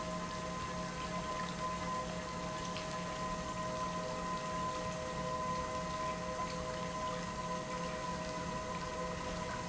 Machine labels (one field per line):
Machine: pump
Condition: normal